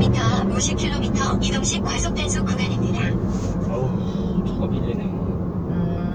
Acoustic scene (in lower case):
car